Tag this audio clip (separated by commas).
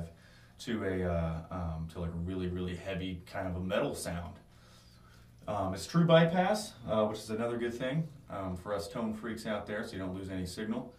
Speech